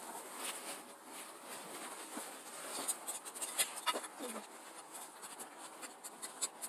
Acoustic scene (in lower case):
street